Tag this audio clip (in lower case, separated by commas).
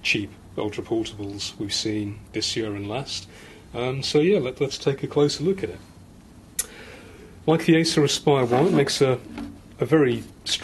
speech